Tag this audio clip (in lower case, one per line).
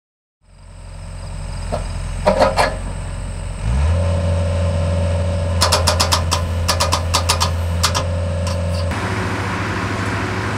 vehicle